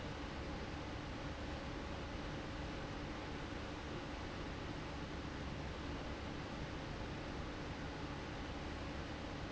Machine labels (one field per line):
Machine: fan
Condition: abnormal